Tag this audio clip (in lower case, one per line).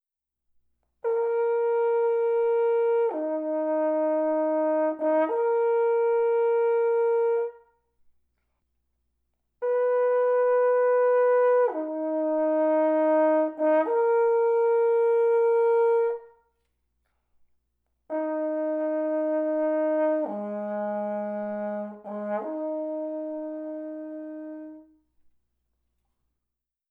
brass instrument
music
musical instrument